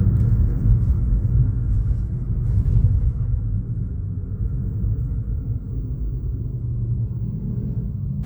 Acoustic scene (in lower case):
car